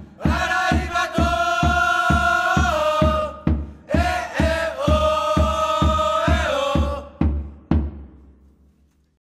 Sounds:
Music

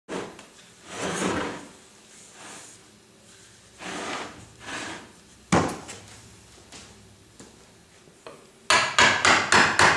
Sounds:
Wood

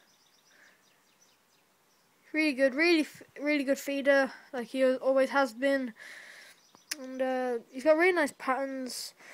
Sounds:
Animal, Speech, inside a small room

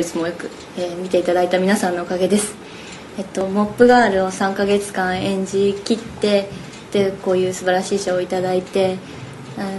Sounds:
woman speaking, monologue, Speech

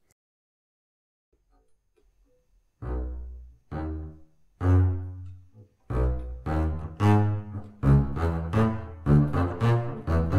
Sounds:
Double bass, Music, Musical instrument, Bowed string instrument, Orchestra

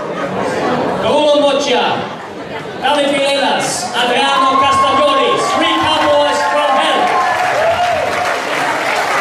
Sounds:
Speech

